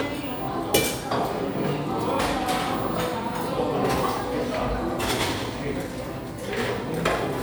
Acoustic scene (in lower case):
cafe